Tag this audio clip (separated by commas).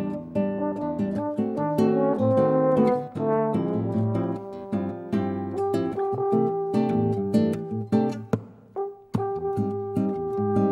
Brass instrument, Pizzicato, French horn